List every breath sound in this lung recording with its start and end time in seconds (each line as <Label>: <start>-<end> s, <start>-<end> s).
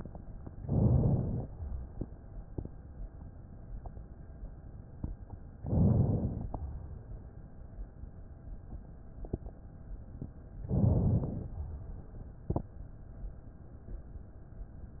Inhalation: 0.57-1.46 s, 5.62-6.51 s, 10.66-11.56 s